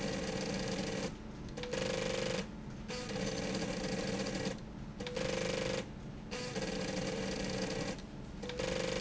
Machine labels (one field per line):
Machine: slide rail